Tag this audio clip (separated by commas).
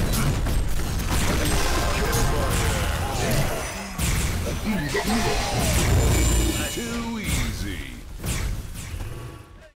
Speech